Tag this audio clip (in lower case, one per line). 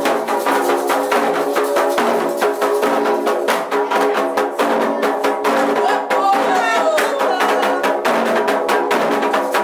speech
music